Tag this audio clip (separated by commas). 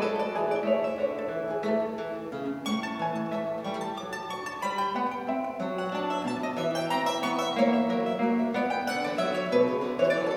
Plucked string instrument, Music, Acoustic guitar, Musical instrument